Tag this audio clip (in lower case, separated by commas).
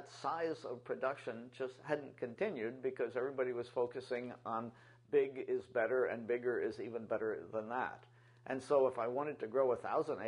speech